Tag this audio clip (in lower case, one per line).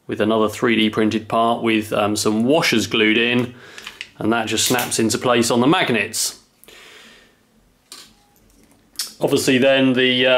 inside a small room
speech